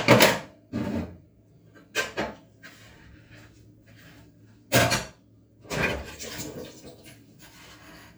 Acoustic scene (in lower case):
kitchen